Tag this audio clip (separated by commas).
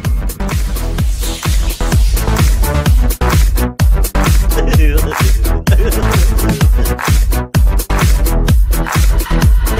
Music